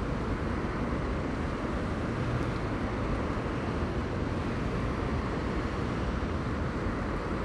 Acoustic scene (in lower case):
street